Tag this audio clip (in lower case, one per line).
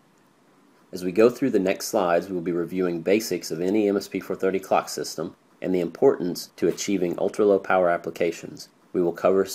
speech